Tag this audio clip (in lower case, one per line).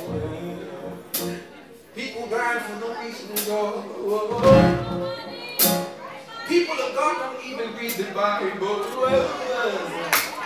speech
music